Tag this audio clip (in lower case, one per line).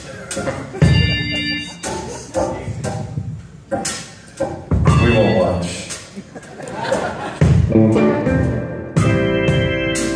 musical instrument
music
guitar
plucked string instrument
speech
electric guitar